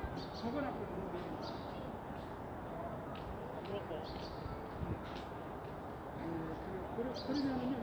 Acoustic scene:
park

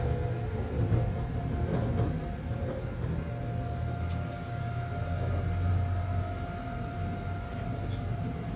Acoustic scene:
subway train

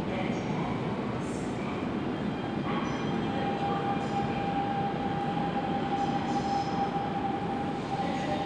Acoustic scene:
subway station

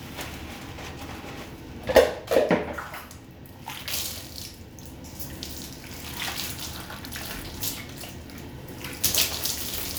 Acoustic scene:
restroom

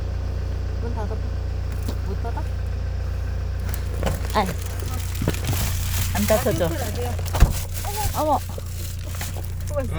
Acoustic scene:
car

